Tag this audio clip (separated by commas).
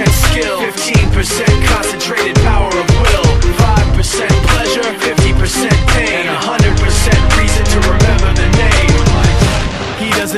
Music